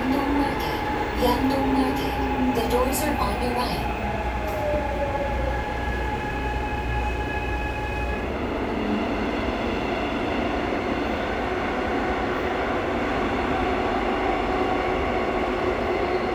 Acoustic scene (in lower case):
subway train